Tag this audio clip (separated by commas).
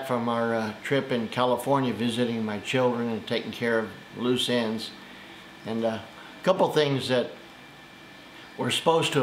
Speech